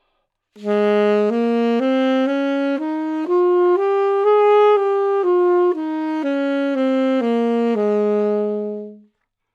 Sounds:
woodwind instrument, music, musical instrument

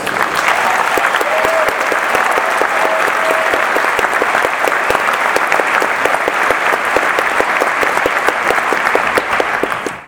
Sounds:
applause, cheering, human group actions

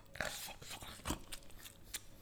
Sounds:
mastication

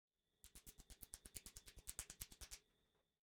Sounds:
hands

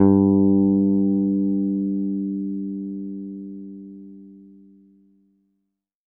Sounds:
music, musical instrument, plucked string instrument, bass guitar, guitar

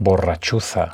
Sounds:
human voice, speech, male speech

